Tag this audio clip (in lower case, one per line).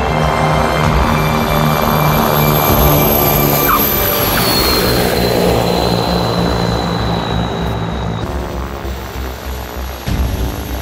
airplane
aircraft
vehicle
music
outside, urban or man-made